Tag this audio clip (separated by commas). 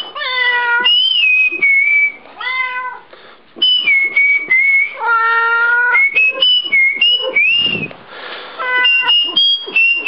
Whistling